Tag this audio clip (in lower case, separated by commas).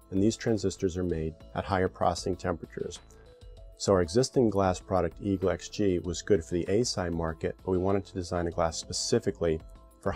speech, music